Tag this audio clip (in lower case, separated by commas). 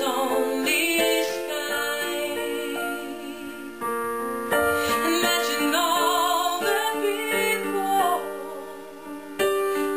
music, female singing